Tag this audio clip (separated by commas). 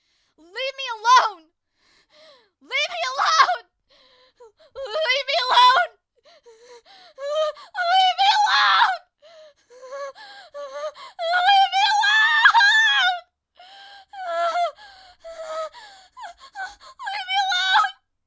Shout, Human voice, Yell